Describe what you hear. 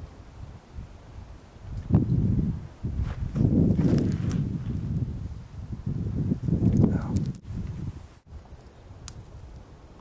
Wind is blowing light and something is being snapped